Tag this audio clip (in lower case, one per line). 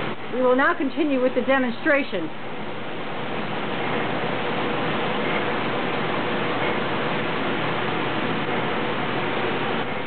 speech